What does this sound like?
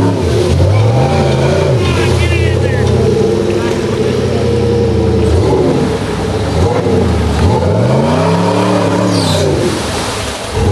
Powerful truck engine revving followed by acceleration